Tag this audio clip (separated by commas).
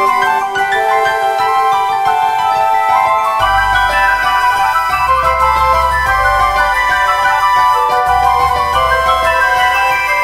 Mallet percussion, xylophone, Glockenspiel